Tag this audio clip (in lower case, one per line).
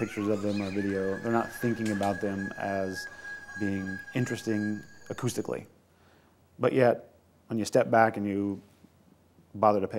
speech